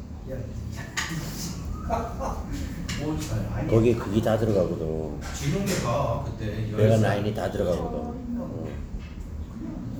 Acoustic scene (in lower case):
crowded indoor space